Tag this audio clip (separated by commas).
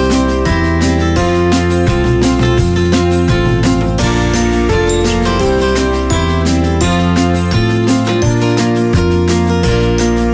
Music